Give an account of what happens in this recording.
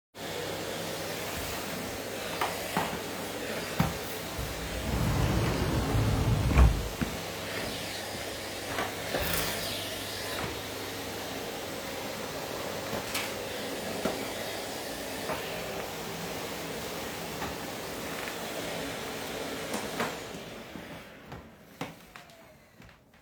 while vacuuming I open my wardrobe door and walk around